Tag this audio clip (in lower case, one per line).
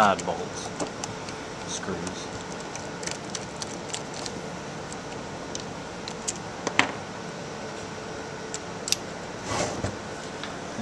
speech